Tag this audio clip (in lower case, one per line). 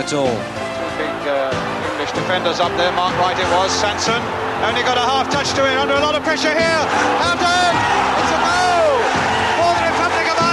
music
speech